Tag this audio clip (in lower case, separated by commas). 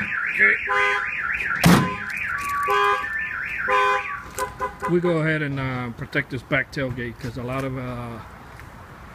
speech, vehicle, car